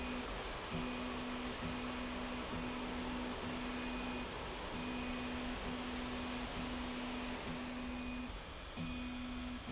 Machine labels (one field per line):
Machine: slide rail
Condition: normal